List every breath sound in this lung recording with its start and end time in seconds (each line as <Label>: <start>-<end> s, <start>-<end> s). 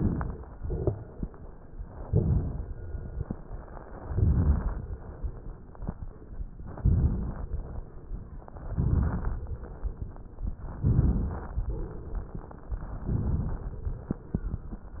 Inhalation: 2.07-2.89 s, 4.00-4.82 s, 6.75-7.57 s, 8.75-9.56 s, 10.72-11.54 s, 12.96-13.78 s
Crackles: 2.07-2.89 s, 4.00-4.82 s, 6.75-7.57 s, 8.75-9.56 s, 10.72-11.54 s, 12.96-13.78 s